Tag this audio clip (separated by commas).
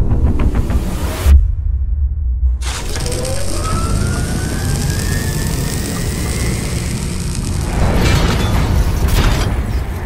firing cannon